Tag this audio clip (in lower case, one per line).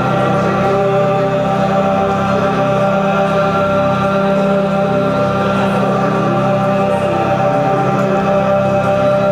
music